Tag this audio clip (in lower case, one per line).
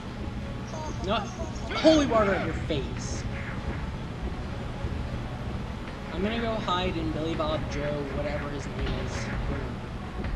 speech
music